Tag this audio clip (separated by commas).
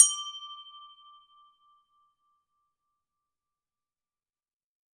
Glass